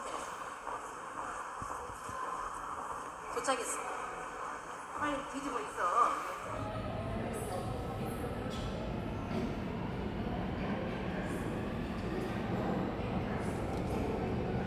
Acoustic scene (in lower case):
subway station